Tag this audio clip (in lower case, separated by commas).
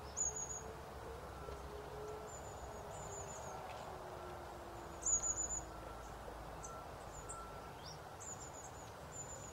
outside, rural or natural